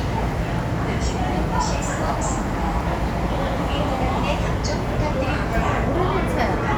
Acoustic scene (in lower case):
subway station